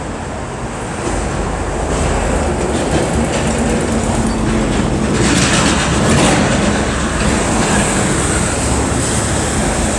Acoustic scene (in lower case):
street